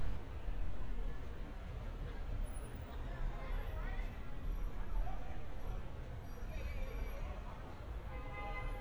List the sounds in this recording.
background noise